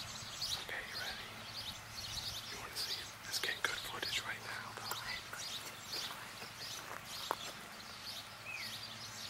Birds chirping and singing with people whispering